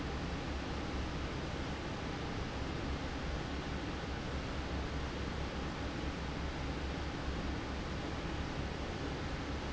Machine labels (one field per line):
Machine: fan